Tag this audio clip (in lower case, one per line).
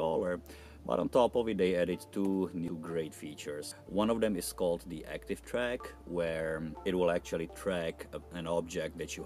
speech